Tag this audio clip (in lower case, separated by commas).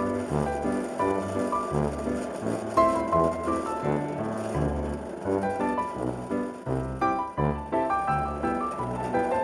music